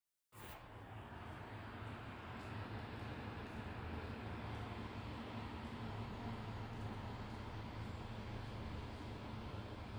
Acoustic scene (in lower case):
residential area